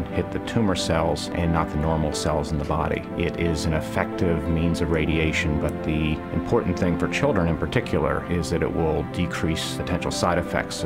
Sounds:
Speech, Music

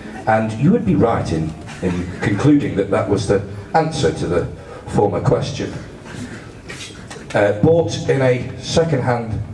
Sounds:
Speech

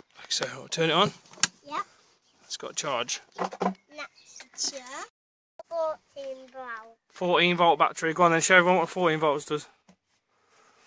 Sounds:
Speech

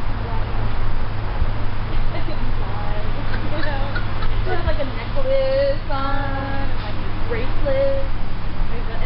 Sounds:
Speech

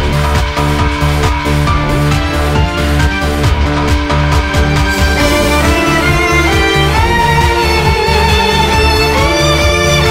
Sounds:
Musical instrument, Music, Violin

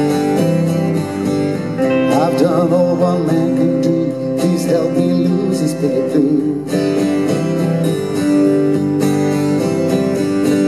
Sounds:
Music

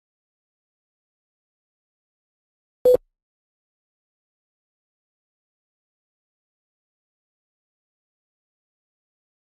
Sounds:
Dial tone

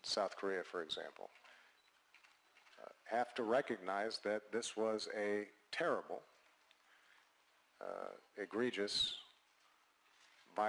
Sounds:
Speech, Male speech

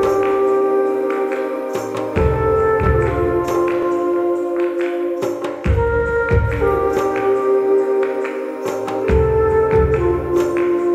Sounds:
Jingle bell

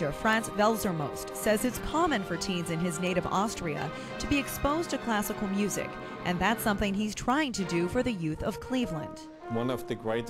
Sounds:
Background music, Orchestra, Speech, Music

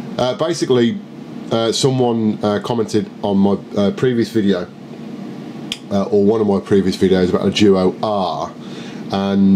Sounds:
Speech

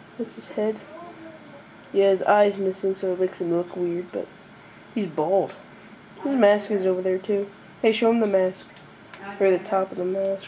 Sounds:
Speech

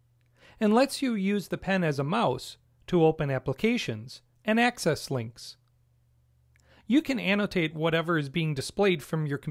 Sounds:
Speech

